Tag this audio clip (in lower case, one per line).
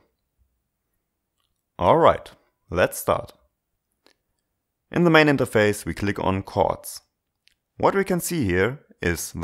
speech